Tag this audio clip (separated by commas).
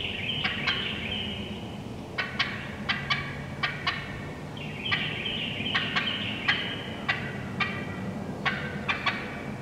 turkey gobbling